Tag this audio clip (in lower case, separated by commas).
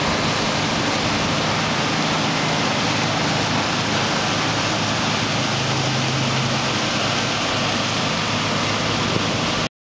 water